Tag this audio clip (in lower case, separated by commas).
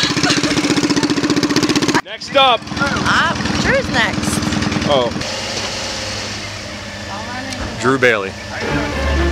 music, speech, vehicle